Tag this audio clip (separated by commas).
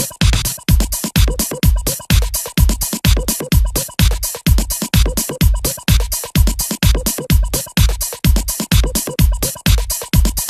Music